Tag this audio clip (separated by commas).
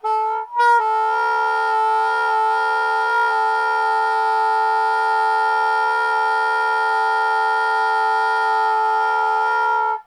Wind instrument, Music, Musical instrument